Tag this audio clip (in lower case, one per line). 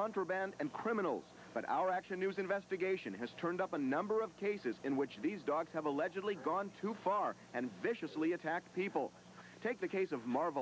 speech